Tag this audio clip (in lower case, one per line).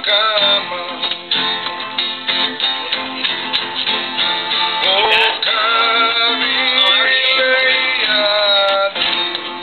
speech
music